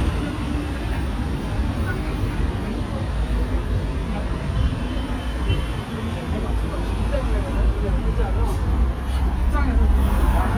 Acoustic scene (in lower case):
street